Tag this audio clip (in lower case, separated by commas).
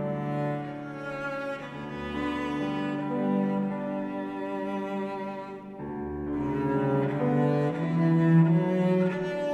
tender music, music